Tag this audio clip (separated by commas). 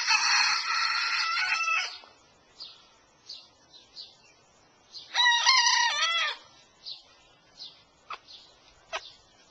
Animal